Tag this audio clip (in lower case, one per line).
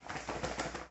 animal
wild animals
bird